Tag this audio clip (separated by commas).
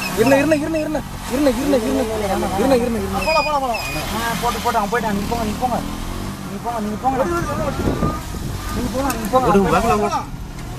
Speech